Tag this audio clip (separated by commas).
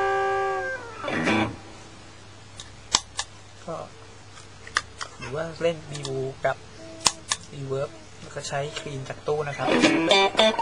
Music, Guitar, Musical instrument, Speech